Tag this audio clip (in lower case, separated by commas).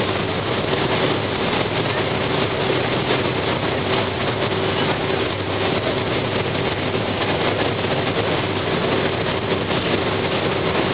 boat, motorboat